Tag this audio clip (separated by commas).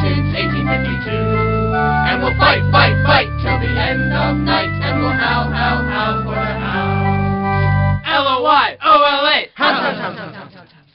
Music, Organ